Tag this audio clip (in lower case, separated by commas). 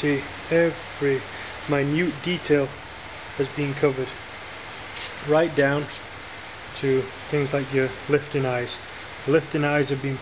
speech